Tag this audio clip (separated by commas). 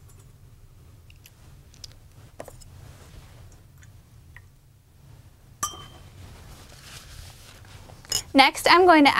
Speech, Water